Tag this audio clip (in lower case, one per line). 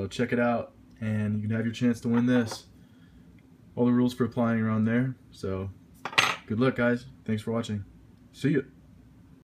speech
tools